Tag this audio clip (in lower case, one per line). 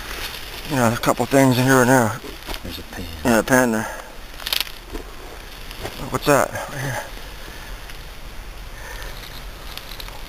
speech